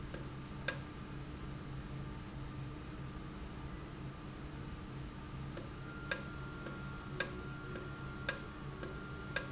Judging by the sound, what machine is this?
valve